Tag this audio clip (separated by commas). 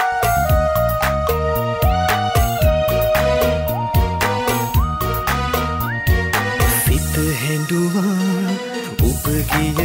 Music